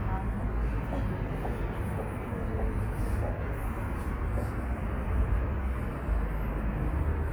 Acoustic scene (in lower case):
residential area